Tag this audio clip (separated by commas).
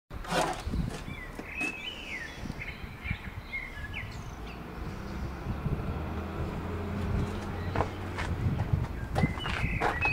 bird call, tweet, Bird